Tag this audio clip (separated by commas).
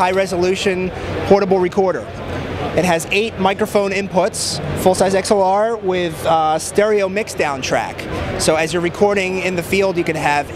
Speech